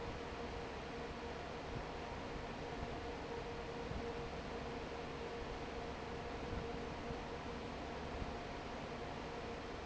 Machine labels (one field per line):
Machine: fan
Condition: normal